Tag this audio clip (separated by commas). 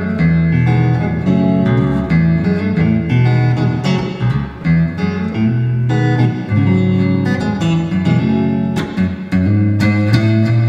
Music, Electric guitar, Plucked string instrument, Musical instrument